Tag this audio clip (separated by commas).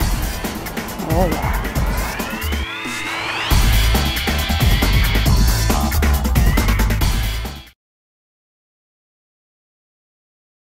Music